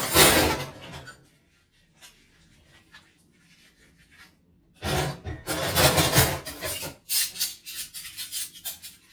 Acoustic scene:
kitchen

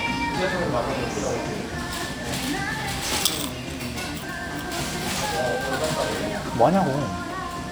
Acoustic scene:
restaurant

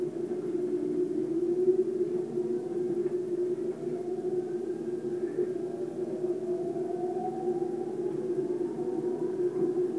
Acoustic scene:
subway train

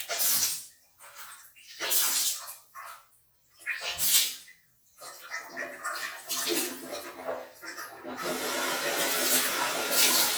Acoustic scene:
restroom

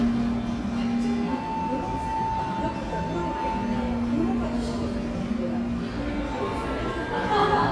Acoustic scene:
cafe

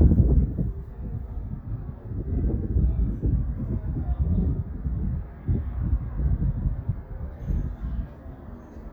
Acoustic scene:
residential area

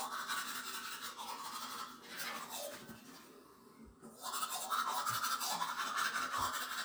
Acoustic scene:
restroom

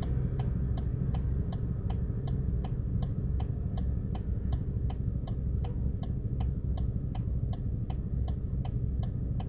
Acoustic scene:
car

